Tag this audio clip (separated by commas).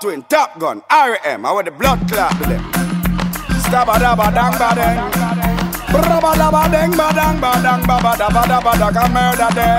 inside a small room, Speech, Music